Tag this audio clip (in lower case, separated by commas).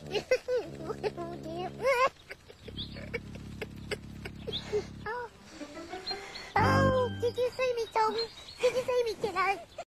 music, speech